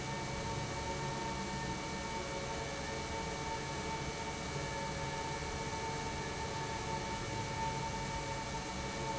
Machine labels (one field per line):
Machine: pump